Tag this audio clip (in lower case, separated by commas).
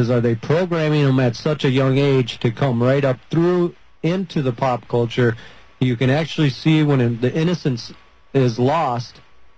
speech